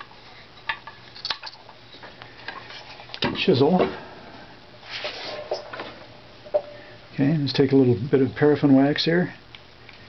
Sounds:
speech
inside a small room

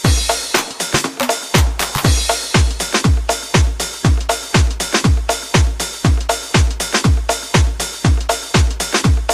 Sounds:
music

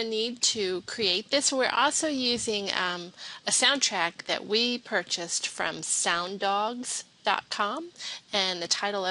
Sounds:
speech

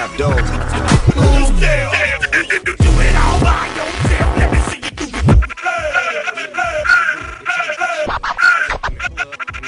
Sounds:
funk
music

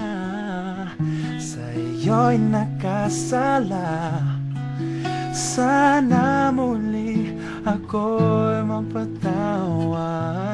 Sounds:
music
male singing

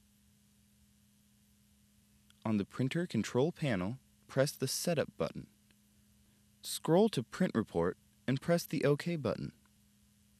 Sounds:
speech

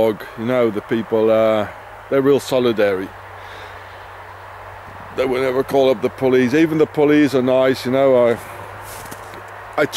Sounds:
outside, rural or natural
speech

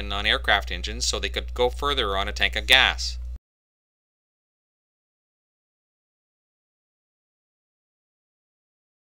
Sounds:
speech

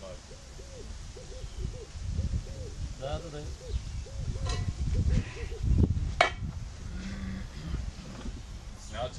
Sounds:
speech

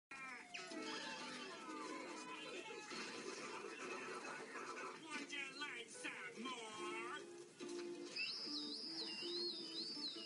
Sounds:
whistle

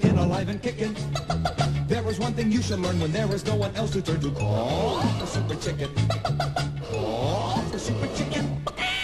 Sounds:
music

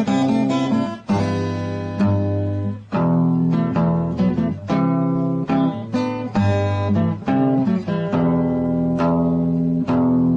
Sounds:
strum
music
guitar
musical instrument

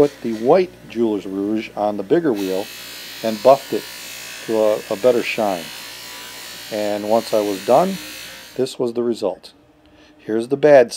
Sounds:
speech
tools

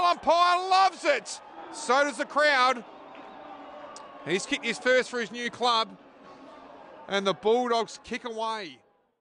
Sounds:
speech

